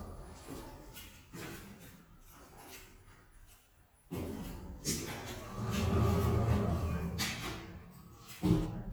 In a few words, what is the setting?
elevator